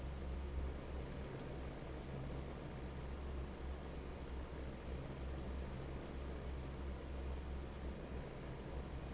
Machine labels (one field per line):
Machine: fan